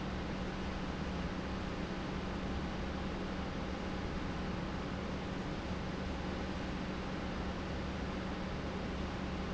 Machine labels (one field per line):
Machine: pump